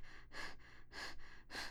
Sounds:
breathing
respiratory sounds

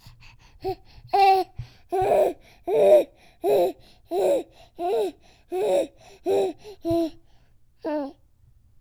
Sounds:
speech
human voice

